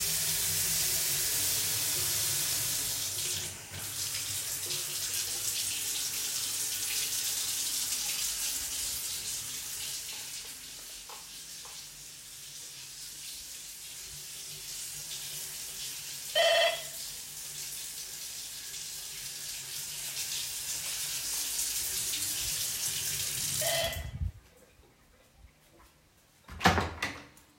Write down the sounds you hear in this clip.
running water, bell ringing, door